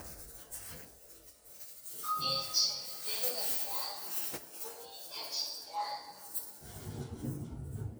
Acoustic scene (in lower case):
elevator